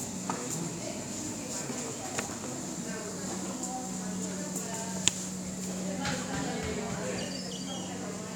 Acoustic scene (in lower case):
cafe